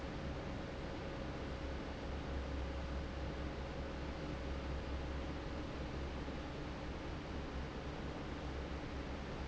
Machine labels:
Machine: fan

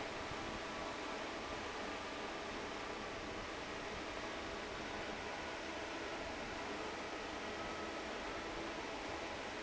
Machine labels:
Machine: fan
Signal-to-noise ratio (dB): 6 dB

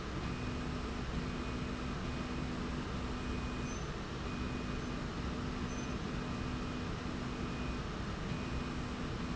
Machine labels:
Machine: slide rail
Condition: normal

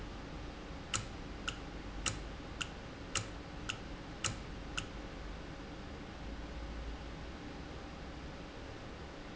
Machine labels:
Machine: valve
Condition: normal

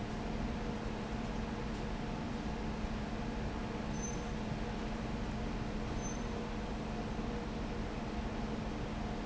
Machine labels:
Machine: fan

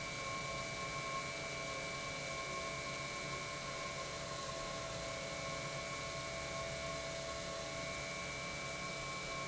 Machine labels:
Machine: pump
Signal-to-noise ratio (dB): 0 dB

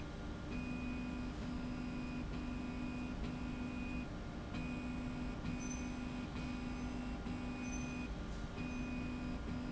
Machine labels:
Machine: slide rail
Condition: normal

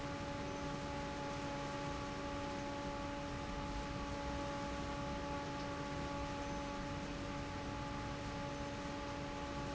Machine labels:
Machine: fan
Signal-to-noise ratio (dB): 0 dB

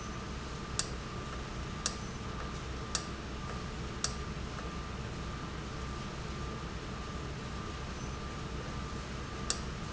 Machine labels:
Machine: valve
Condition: normal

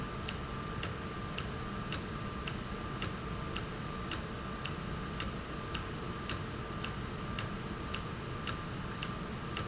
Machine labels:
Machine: valve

